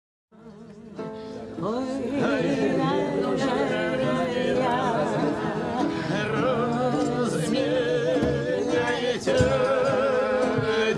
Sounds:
music, a capella

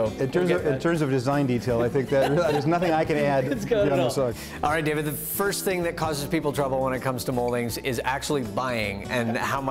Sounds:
music, speech

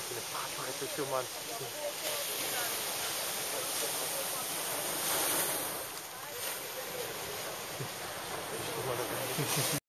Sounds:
speech

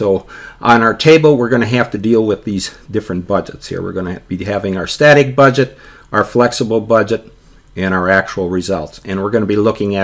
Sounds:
speech

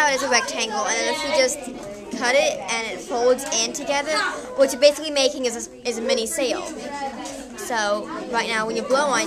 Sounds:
speech

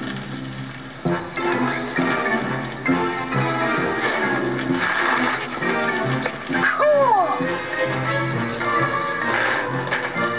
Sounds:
vehicle, music, bicycle

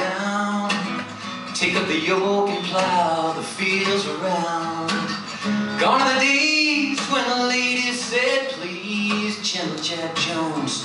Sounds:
guitar, music, musical instrument, acoustic guitar, plucked string instrument, strum

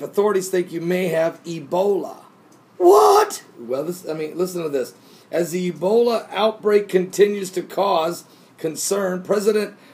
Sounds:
speech

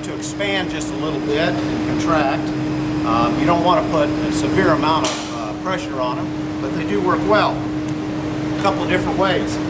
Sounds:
speech

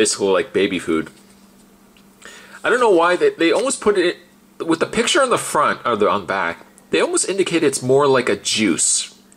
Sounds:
inside a small room, speech

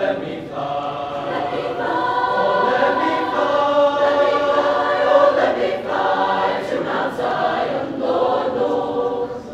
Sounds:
choir, singing choir

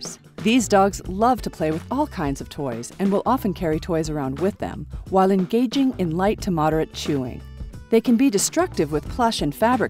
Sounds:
speech, music

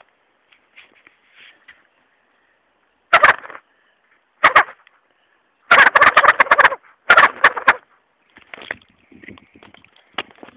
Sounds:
turkey gobbling

